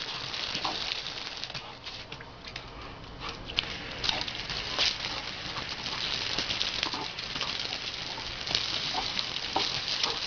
Crackling and water dripping